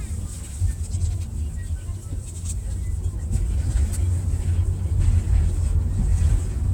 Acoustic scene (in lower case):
car